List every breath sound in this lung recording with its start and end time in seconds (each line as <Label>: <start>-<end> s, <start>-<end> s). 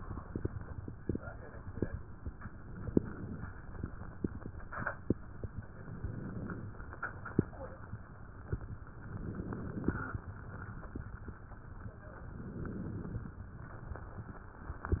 Inhalation: 2.47-3.54 s, 5.59-6.65 s, 8.87-10.21 s, 12.08-13.43 s